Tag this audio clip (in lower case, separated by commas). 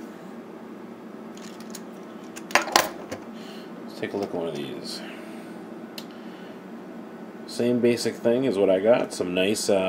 inside a small room, speech